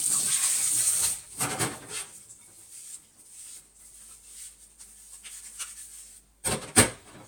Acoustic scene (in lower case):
kitchen